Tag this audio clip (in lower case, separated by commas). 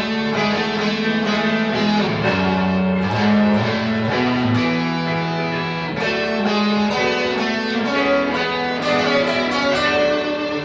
plucked string instrument, music, strum, electric guitar, musical instrument, guitar